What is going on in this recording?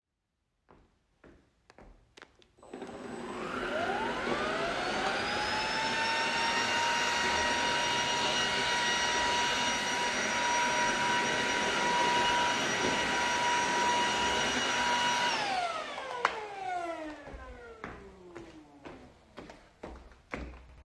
I walked to the vacuum cleaner turned it on and cleaned the floor. After the floor was clean I turned it off and walked away.